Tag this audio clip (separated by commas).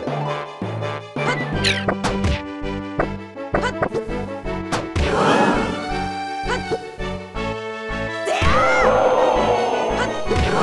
Music